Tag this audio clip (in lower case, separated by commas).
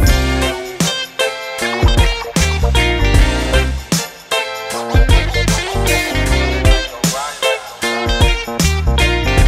bass guitar, music